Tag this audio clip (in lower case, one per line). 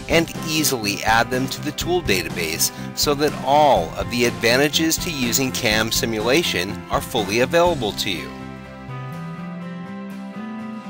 speech
music